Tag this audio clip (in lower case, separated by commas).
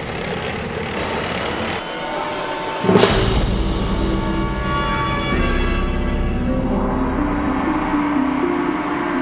vehicle, music, scary music